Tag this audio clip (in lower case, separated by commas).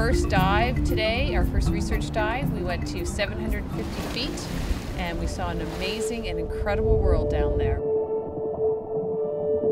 speech, music